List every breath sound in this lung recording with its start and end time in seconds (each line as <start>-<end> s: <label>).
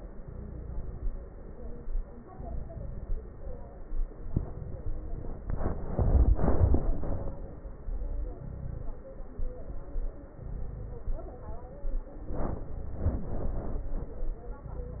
0.19-1.08 s: inhalation
0.19-1.08 s: crackles
2.30-3.19 s: inhalation
2.30-3.19 s: crackles
4.27-5.17 s: inhalation
4.27-5.17 s: crackles
8.36-8.90 s: inhalation
8.36-8.90 s: crackles
10.36-11.03 s: inhalation
10.36-11.03 s: crackles
11.07-11.59 s: exhalation
14.65-15.00 s: inhalation
14.65-15.00 s: crackles